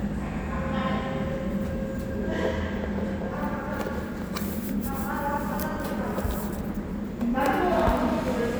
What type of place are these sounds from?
elevator